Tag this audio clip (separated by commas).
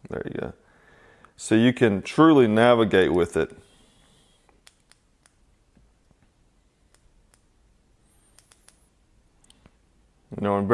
inside a small room, Speech